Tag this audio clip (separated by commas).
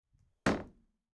Door, home sounds, Slam